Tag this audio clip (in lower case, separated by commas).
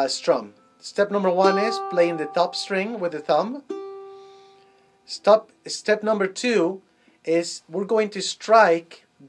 musical instrument, plucked string instrument, speech, music, guitar